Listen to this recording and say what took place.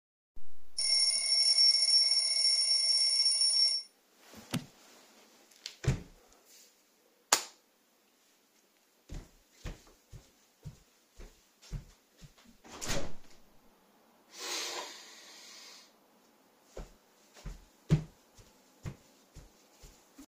The alarm rings. I stand up, turn on the light switch, walk to the window and open it, take a deep breath, then walk back.